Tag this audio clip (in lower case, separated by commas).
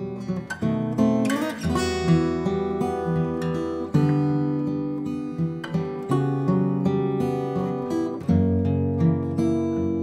acoustic guitar, plucked string instrument, guitar, music, musical instrument, strum